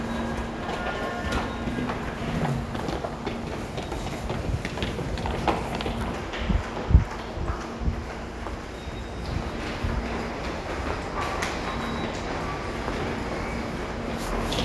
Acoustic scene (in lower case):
subway station